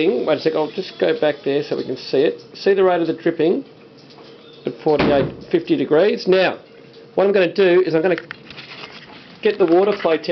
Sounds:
Speech

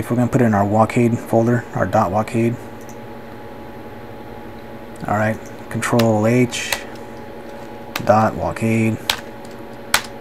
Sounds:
Speech, inside a small room

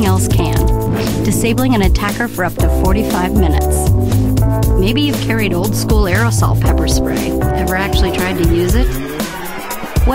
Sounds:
Music, Speech

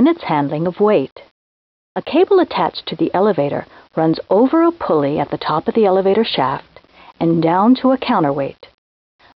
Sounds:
Speech

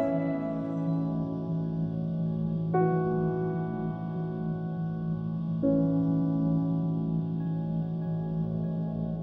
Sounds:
Distortion, Effects unit

